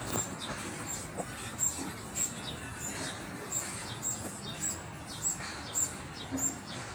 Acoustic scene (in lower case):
park